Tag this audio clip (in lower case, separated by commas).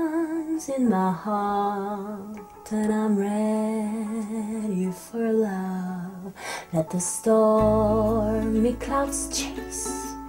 music